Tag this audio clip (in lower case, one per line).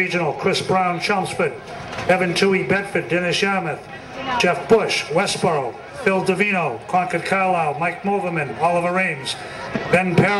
speech
run